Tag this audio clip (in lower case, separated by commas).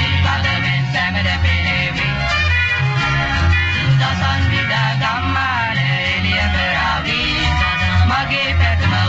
music